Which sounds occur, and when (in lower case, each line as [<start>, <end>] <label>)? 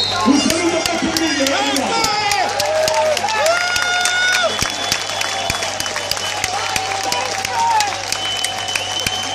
[0.01, 9.34] crowd
[0.30, 2.53] man speaking
[0.36, 4.51] clapping
[4.28, 9.34] whistling
[4.47, 9.34] clapping